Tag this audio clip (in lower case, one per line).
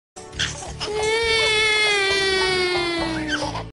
music